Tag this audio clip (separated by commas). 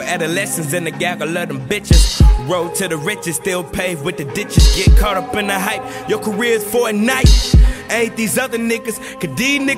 Rapping